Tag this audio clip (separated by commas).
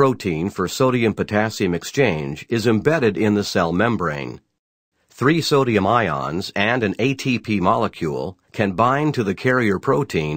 Speech